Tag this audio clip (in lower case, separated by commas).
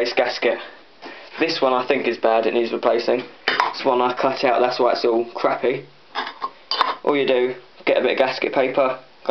speech